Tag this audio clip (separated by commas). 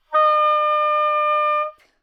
Wind instrument, Music, Musical instrument